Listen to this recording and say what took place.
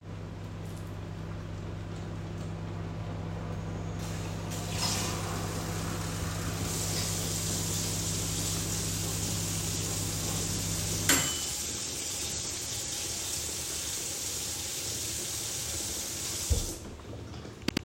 While the microwave was running, I turned the faucet. Then, as the water was running, the microwave beeped and stopped.